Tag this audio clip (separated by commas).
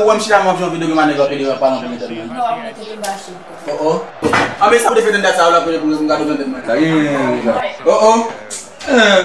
Speech